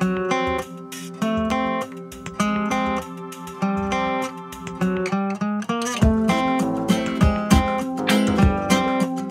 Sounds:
music

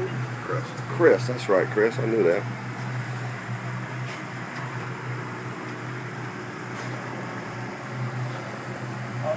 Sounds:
speech

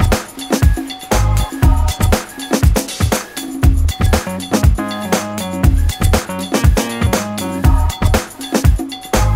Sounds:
music

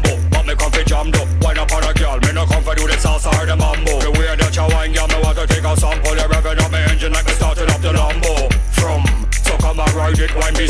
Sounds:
music, ska

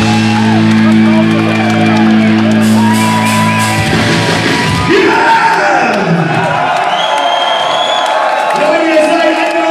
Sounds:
speech, music

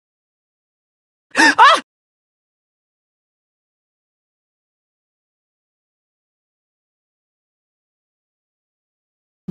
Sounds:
sigh, speech

